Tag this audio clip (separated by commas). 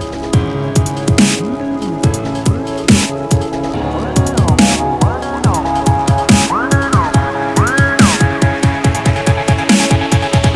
Electronic music, Music, Dubstep